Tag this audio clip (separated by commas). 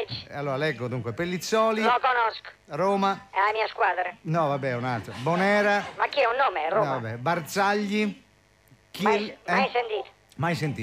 Radio, Speech